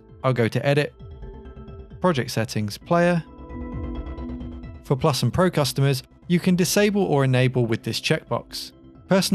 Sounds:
Speech, Music

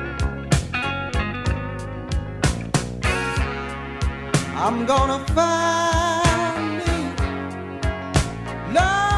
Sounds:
Soul music, Music

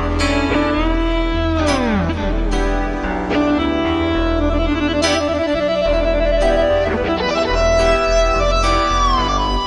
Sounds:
Steel guitar, Music, Musical instrument

